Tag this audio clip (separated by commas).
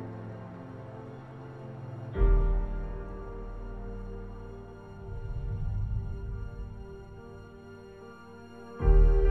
Music